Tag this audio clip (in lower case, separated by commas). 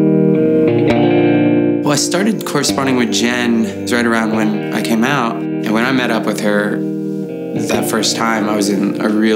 outside, urban or man-made, music, speech